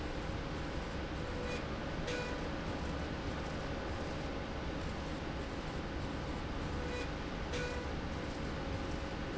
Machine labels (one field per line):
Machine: slide rail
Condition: normal